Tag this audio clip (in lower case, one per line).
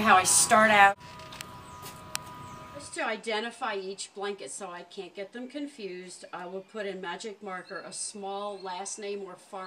speech